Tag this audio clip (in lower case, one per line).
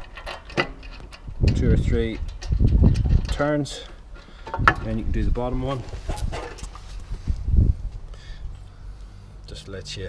speech